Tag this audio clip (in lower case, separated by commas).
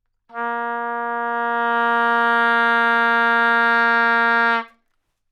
music, wind instrument, musical instrument